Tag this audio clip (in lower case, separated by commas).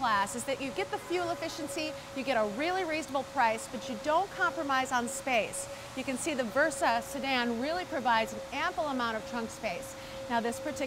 speech